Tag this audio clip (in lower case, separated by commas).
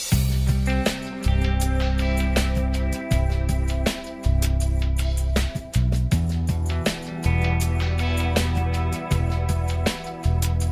music